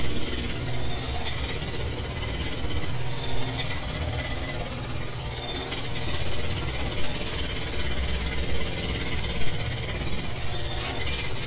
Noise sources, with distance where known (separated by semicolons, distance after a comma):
jackhammer, near